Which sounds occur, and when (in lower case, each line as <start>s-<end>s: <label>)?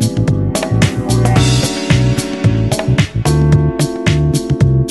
0.0s-4.9s: music